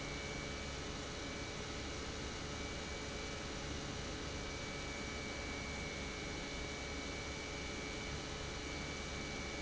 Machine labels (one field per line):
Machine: pump